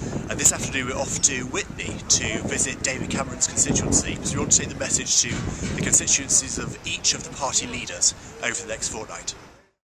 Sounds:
Speech

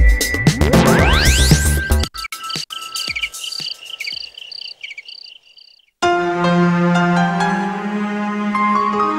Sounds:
Music

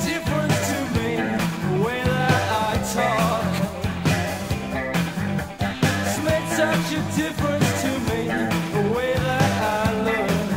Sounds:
Music

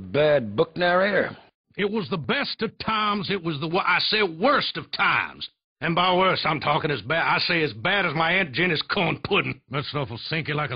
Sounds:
Speech

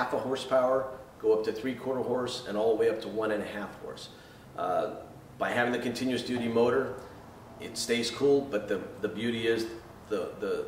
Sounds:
Speech

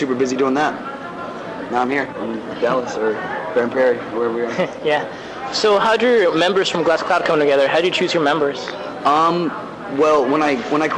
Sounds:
Speech

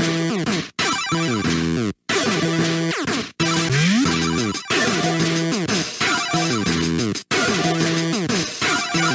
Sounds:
Music

